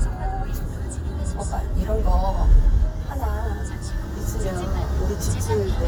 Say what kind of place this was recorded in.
car